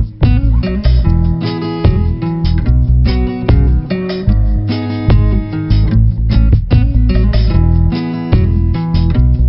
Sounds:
Music

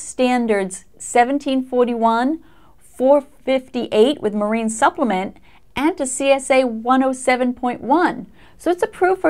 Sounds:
Speech

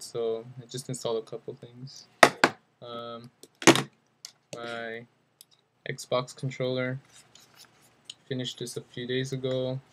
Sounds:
Speech

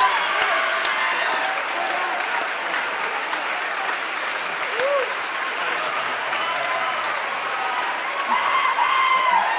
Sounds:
people clapping, Applause

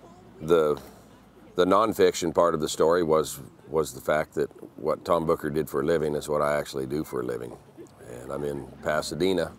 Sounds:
Speech

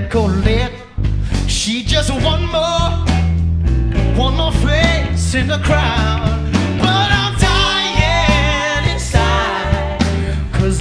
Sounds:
Music

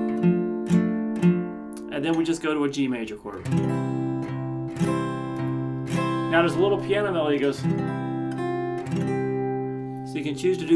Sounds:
Guitar, Plucked string instrument, Acoustic guitar, Strum, Musical instrument

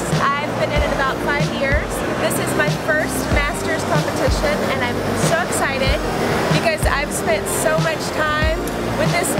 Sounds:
Music, Speech

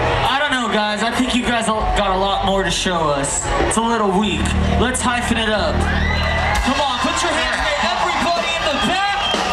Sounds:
Speech, Music

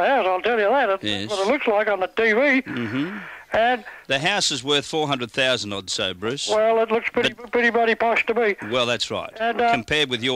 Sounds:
Speech

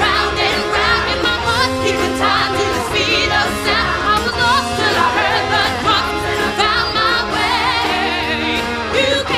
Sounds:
Music

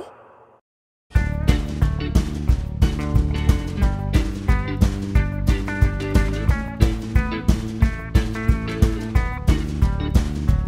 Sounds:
Music

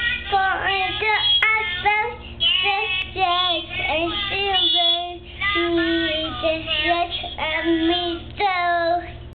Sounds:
Child singing

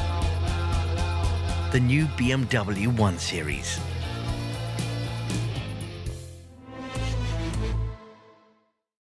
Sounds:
Speech, Music

